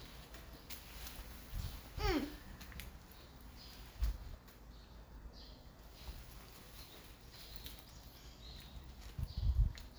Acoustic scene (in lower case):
park